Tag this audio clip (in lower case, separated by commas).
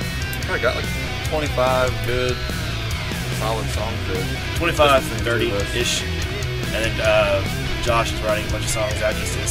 speech, music